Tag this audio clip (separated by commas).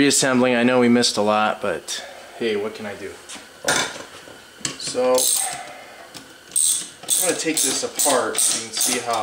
pawl, Mechanisms, Gears